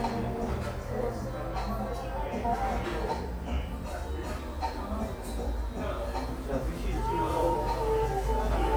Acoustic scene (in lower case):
cafe